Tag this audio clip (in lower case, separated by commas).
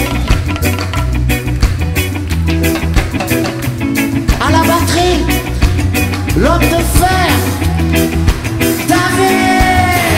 ska